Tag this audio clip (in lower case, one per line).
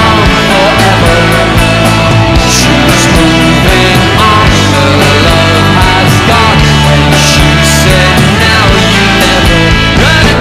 music
singing
rock music